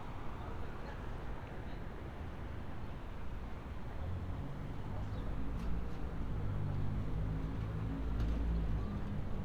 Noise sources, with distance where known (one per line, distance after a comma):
engine of unclear size
person or small group talking, far